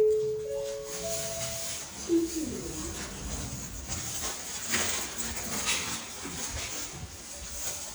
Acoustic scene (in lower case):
elevator